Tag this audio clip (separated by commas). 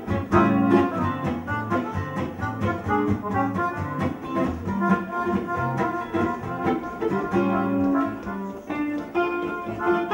Strum, Plucked string instrument, Music, Guitar, Musical instrument